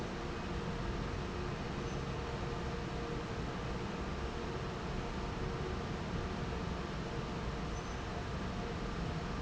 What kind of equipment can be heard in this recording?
fan